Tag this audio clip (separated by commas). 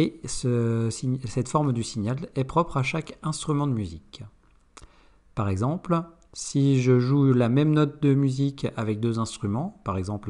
reversing beeps